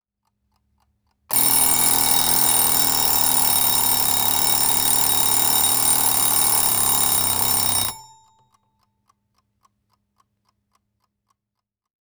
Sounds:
alarm

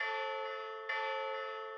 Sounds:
bell

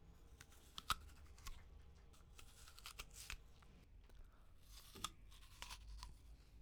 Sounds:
chewing

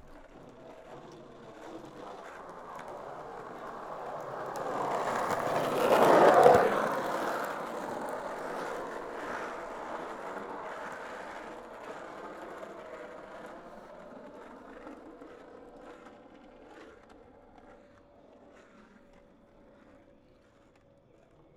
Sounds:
skateboard, vehicle

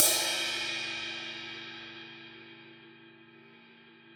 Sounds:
music, crash cymbal, percussion, cymbal, musical instrument

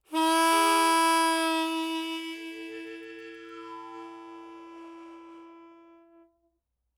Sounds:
musical instrument, harmonica, music

